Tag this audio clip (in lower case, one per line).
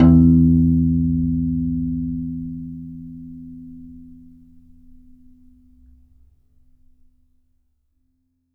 keyboard (musical)
musical instrument
piano
music